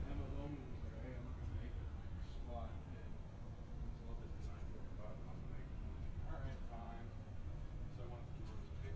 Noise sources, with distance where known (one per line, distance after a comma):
person or small group talking, near